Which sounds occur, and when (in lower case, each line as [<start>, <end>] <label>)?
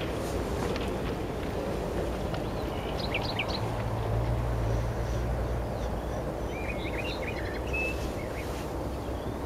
[0.00, 9.45] background noise
[2.86, 3.86] bird
[6.42, 8.50] bird